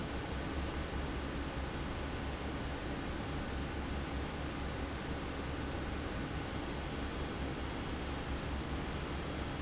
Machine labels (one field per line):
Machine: fan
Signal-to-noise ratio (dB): -6 dB